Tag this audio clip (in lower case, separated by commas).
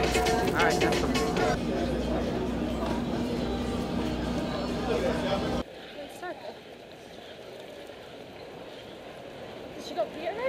outside, urban or man-made, speech, music